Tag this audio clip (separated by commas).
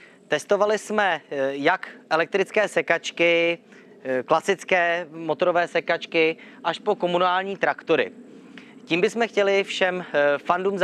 Speech